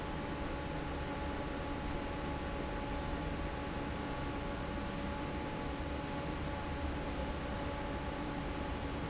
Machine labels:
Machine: fan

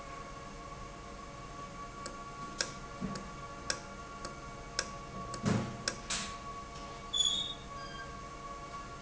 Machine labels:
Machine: valve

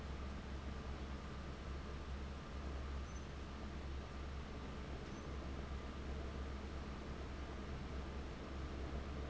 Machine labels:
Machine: fan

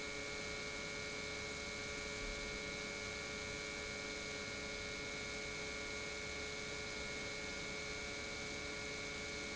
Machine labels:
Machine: pump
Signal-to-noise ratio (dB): 6 dB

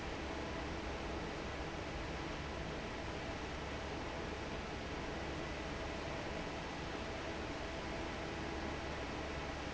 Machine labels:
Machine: fan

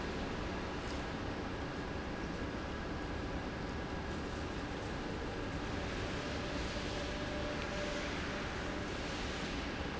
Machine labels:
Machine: pump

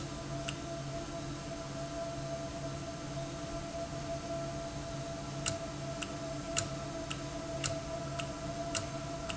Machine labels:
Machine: valve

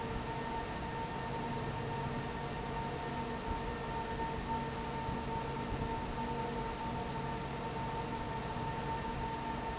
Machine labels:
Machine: fan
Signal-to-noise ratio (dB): -6 dB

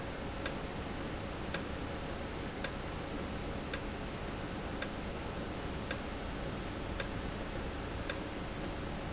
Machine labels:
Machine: valve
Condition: normal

